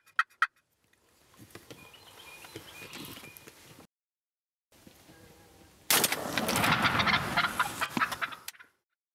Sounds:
gobble, turkey gobbling, fowl, turkey

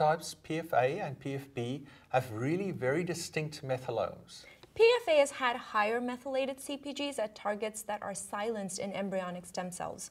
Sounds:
speech, inside a small room

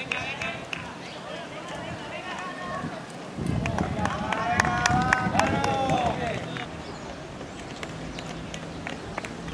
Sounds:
speech, run, outside, urban or man-made, people running

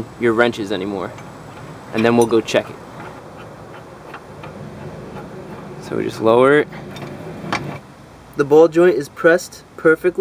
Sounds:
speech, outside, urban or man-made

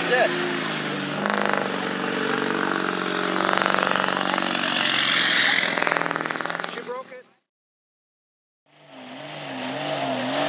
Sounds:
speech, outside, rural or natural, truck, vehicle

